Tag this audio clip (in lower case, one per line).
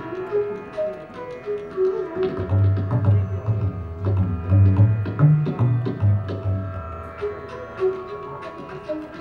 tabla
percussion
drum